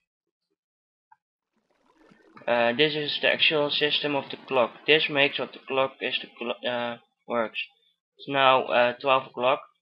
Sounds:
Speech

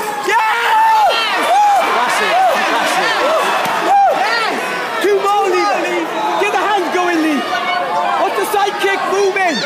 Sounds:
Crowd

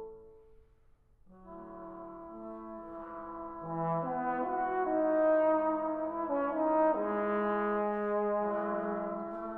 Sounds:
Trombone, Brass instrument, playing trombone

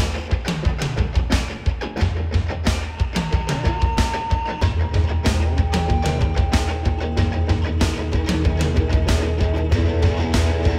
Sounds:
Music

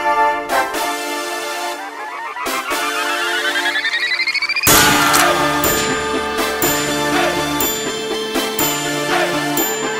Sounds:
Music

